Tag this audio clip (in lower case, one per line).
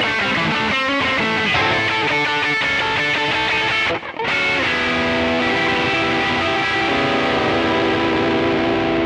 musical instrument
guitar
plucked string instrument
electric guitar
music